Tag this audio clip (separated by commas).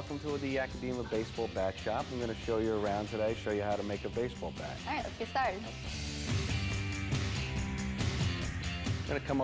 Music, Speech